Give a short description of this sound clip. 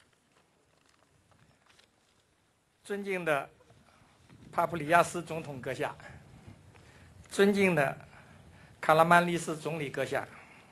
Man speaking in foreign language